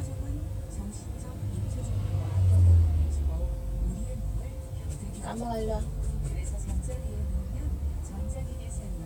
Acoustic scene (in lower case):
car